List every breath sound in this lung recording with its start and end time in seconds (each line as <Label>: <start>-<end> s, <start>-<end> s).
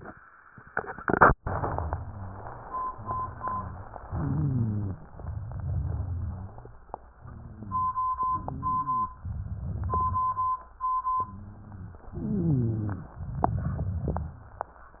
Inhalation: 4.06-5.07 s, 8.16-9.16 s, 12.16-13.17 s
Exhalation: 5.12-6.77 s, 9.26-10.62 s, 13.21-14.57 s
Rhonchi: 1.41-2.62 s, 2.92-3.99 s, 4.06-5.07 s, 5.66-6.77 s, 8.16-9.16 s, 12.16-13.17 s
Crackles: 9.26-10.62 s, 13.21-14.74 s